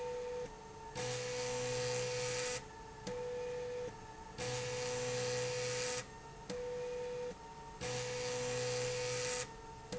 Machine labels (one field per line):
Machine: slide rail